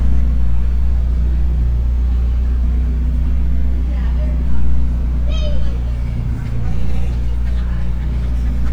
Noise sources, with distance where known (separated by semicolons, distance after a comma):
engine of unclear size; unidentified human voice, near